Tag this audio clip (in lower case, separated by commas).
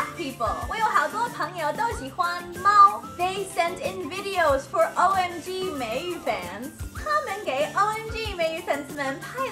music, speech